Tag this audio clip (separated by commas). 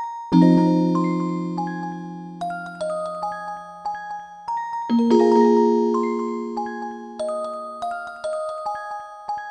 Piano, Musical instrument, Music